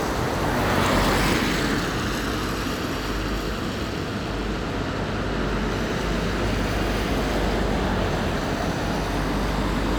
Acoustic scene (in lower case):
street